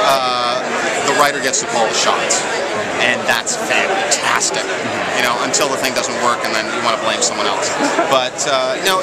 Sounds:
speech

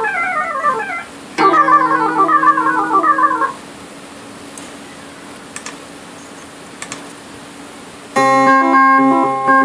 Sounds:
guitar
effects unit
theremin

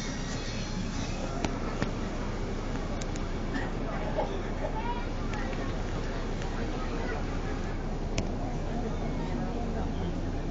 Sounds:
speech

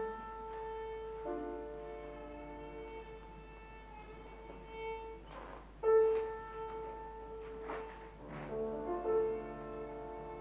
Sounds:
music
violin
musical instrument

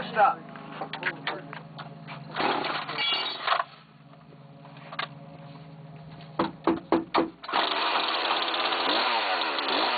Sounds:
wood
chainsaw
speech

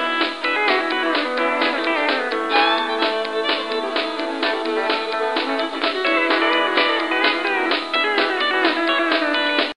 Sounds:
music

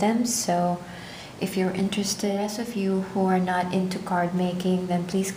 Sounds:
speech

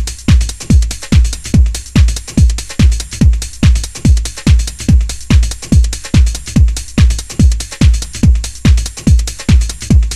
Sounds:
music

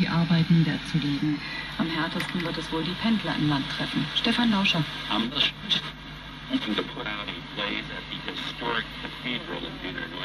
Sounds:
speech
radio

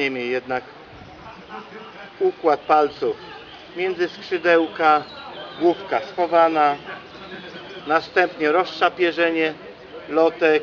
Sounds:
pigeon
outside, rural or natural
male speech
speech

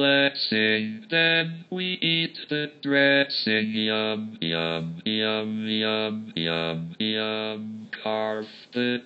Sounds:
male singing

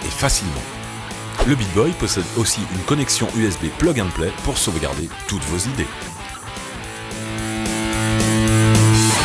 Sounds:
speech
music

